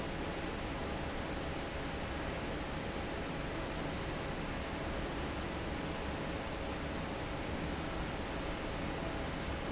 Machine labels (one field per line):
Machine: fan